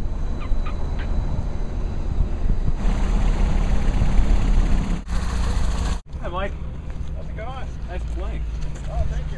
An engine is humming and two men are having a conversation